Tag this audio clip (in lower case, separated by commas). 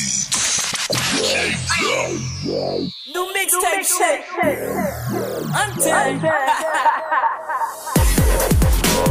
electronic music, music, dubstep